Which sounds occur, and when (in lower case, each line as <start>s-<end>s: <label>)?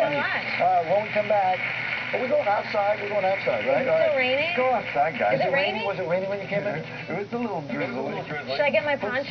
0.0s-0.4s: man speaking
0.0s-9.3s: conversation
0.0s-9.3s: mechanisms
0.6s-1.5s: man speaking
2.1s-3.9s: man speaking
4.1s-4.7s: woman speaking
4.5s-6.8s: man speaking
5.4s-5.9s: woman speaking
7.0s-9.3s: man speaking
8.4s-9.3s: woman speaking